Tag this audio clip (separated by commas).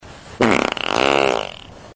Fart